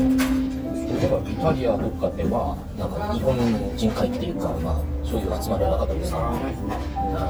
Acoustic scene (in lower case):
restaurant